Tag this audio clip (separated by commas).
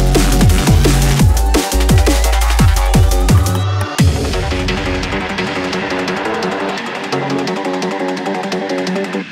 Dubstep, Music, Drum and bass, Electronic music